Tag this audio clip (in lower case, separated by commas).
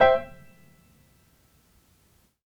musical instrument, piano, keyboard (musical), music